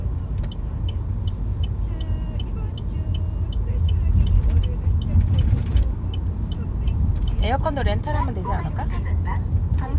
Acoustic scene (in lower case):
car